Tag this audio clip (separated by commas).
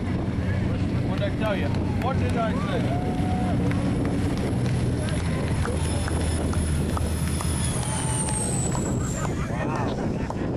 speedboat, Wind noise (microphone), Wind, Boat